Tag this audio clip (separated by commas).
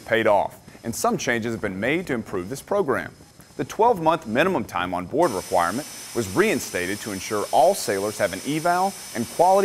Speech